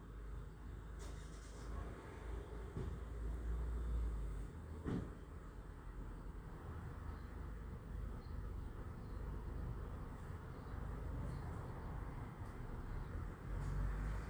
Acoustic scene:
residential area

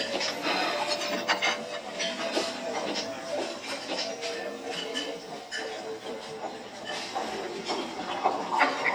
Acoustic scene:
restaurant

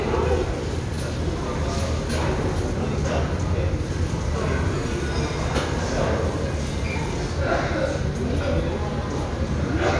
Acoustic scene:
restaurant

